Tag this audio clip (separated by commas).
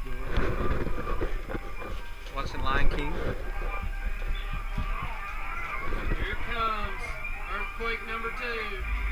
Speech, Music